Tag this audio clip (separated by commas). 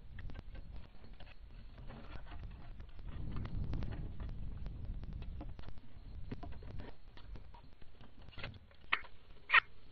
Bird, Pigeon